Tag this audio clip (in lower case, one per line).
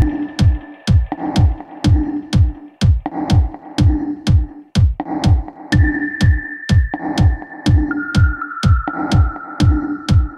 electronica
techno
music